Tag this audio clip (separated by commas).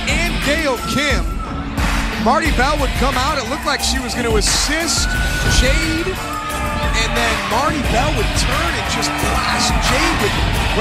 Speech, Music